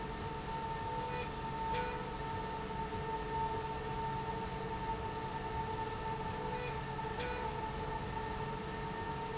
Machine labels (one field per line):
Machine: slide rail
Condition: normal